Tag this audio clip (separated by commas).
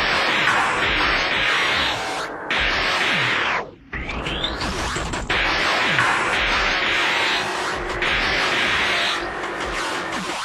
Music